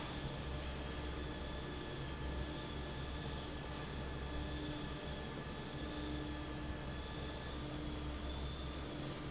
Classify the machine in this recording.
fan